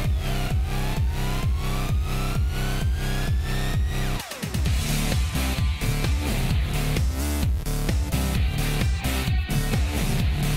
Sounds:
music

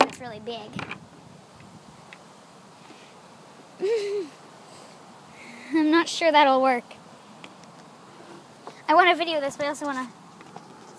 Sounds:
outside, urban or man-made, child speech, speech

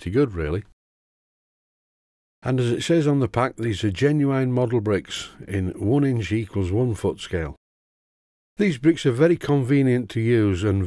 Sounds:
speech, inside a small room

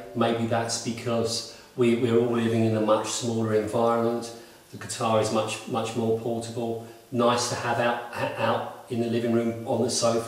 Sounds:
speech

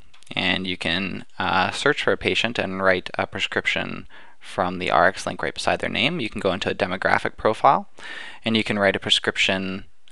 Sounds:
speech

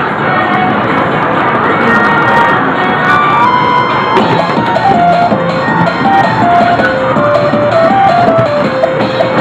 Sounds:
music

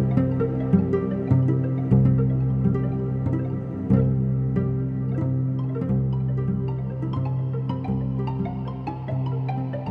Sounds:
music, harmonic

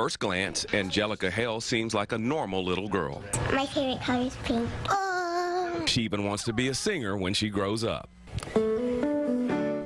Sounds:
music, speech

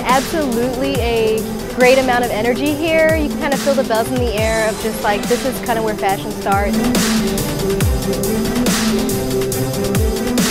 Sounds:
speech, music

